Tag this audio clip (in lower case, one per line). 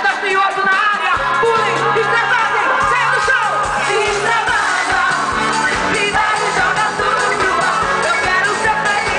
crowd
whoop
music
pop music